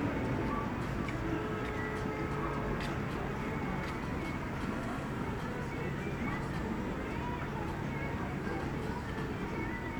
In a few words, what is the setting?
street